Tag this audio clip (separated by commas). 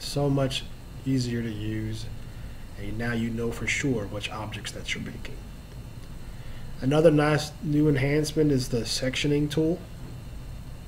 Speech